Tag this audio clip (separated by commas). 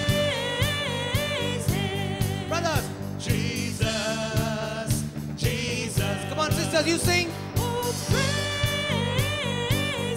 Music, Speech